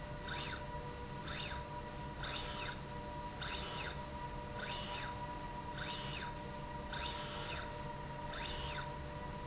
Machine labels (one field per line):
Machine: slide rail